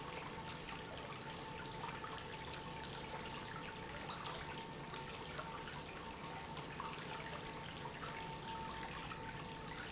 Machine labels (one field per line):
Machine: pump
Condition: normal